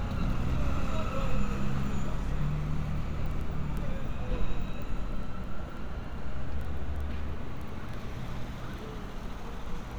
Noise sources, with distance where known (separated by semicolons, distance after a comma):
engine of unclear size; unidentified human voice